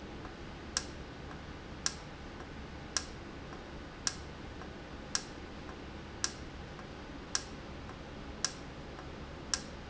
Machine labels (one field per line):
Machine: valve